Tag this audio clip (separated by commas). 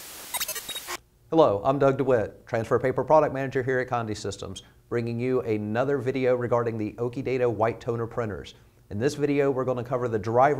Speech